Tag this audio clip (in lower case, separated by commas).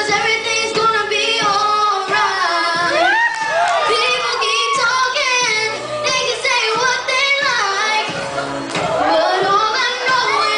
child singing, music